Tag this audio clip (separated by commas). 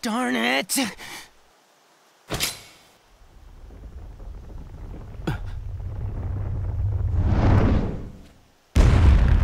Speech